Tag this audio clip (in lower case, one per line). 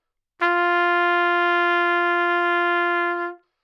trumpet
brass instrument
music
musical instrument